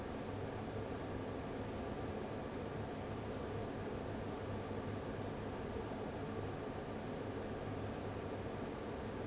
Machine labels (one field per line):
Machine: fan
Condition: abnormal